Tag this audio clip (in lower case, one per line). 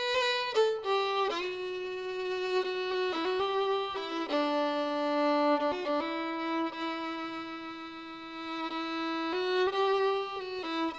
fiddle
music
musical instrument